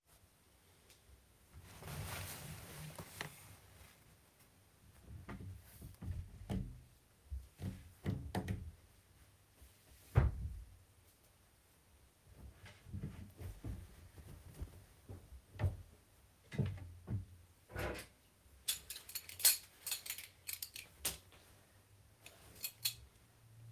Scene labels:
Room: hallway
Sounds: wardrobe or drawer

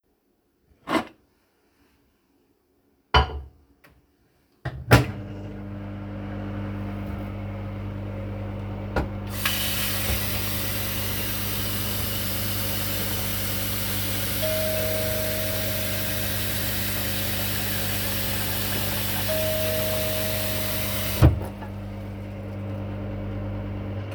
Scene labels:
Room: kitchen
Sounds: microwave, cutlery and dishes, running water, bell ringing

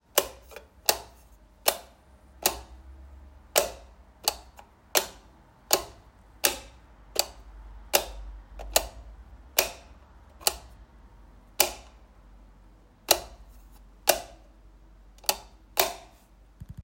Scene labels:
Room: bedroom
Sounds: light switch

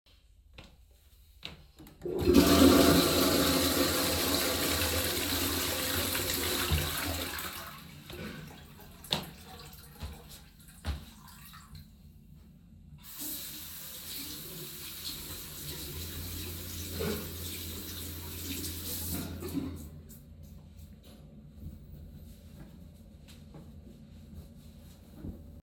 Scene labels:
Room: bathroom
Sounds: toilet flushing, footsteps, running water

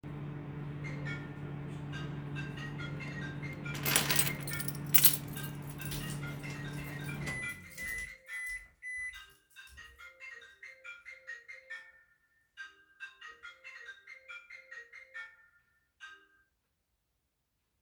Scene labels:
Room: kitchen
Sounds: microwave, phone ringing, keys

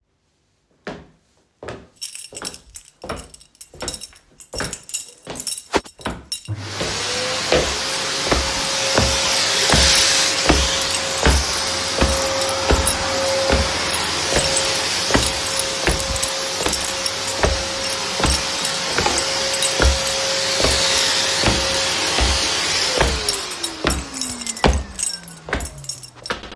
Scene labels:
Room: bedroom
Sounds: footsteps, keys, vacuum cleaner

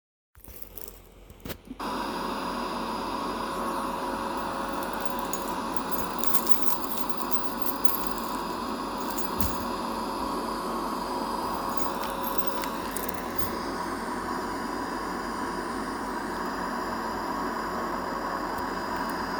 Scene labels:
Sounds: keys, vacuum cleaner

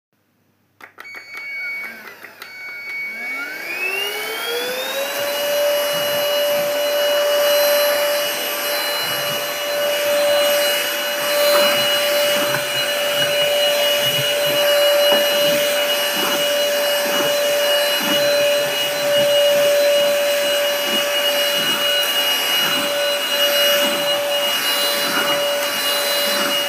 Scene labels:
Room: living room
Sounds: vacuum cleaner

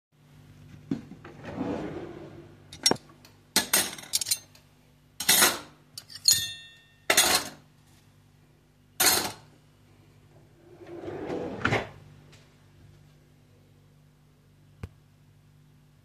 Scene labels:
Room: kitchen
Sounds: wardrobe or drawer (more than once), cutlery and dishes

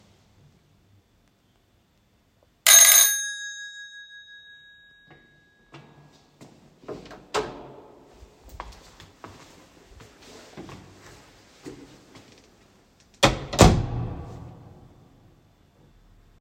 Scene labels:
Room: hallway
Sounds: bell ringing, footsteps, door (more than once)

